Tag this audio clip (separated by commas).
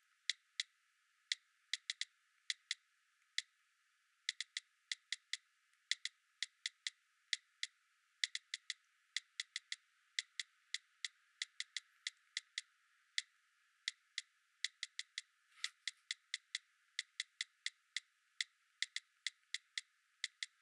Typing, Domestic sounds